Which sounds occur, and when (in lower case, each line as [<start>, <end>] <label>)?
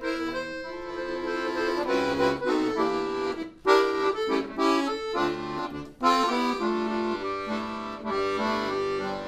[0.01, 9.25] music